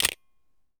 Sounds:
Mechanisms, Camera

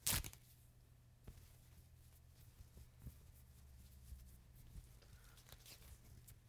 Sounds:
Tearing

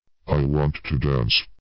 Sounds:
Speech synthesizer, Human voice, Speech

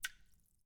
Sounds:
Water, Rain, Raindrop

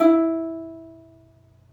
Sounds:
Music, Plucked string instrument, Musical instrument

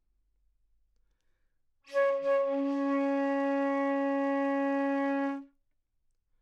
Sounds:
Musical instrument, Music, Wind instrument

